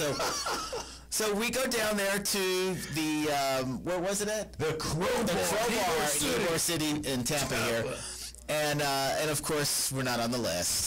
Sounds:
Speech

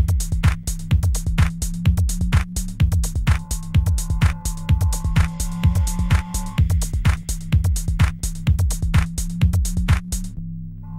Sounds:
Music, House music

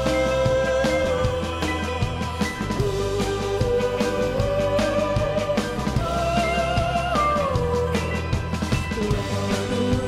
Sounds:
Music

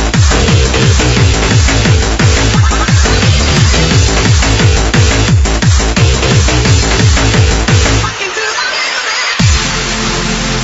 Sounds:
Music, Techno, Electronic music

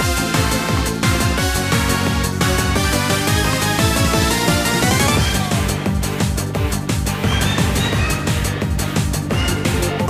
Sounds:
Music

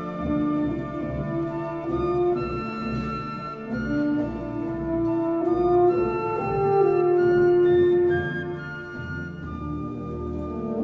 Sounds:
Brass instrument, Music

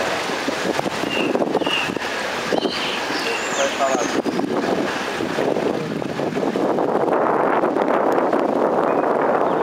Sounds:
Boat, Speech, sailing ship

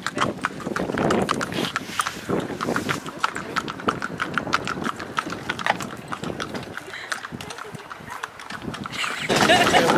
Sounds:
horse clip-clop

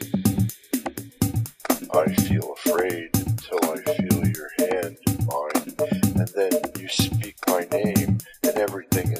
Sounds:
Music, Speech

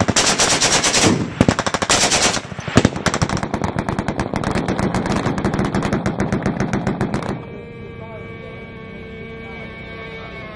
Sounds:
machine gun shooting

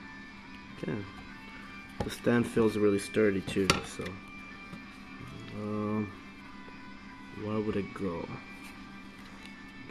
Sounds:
Speech, Music

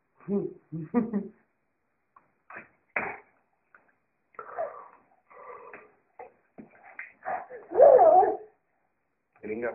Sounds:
Speech, Dog, Animal

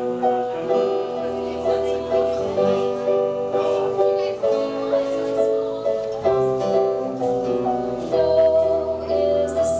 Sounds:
Speech, Music

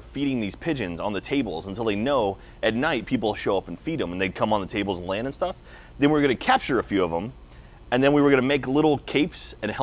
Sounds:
Speech

